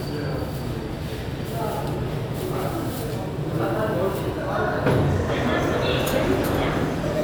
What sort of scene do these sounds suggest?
subway station